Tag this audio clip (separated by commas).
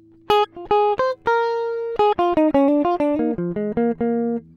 Music, Musical instrument, Plucked string instrument, Guitar